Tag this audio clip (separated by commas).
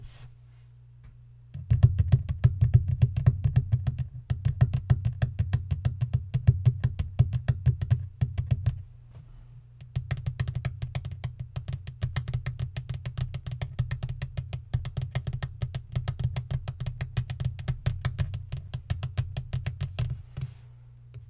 Tap